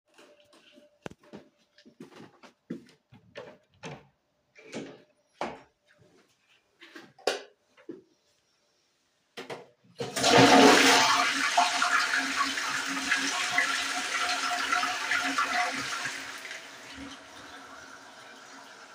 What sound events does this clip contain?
door, light switch, toilet flushing